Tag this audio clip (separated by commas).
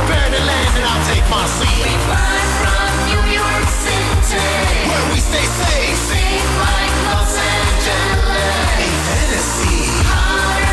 Music, Soundtrack music, Dance music